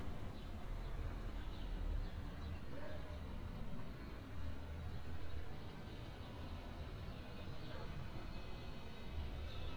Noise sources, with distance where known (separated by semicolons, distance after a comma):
dog barking or whining, far